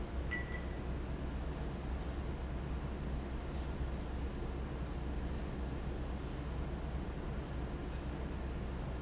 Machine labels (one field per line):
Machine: fan